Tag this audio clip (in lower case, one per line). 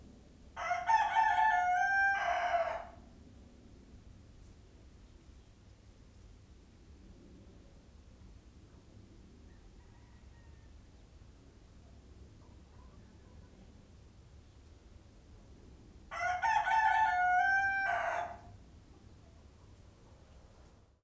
animal
chicken
livestock
fowl